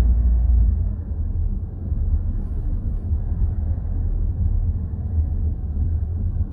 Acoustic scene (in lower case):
car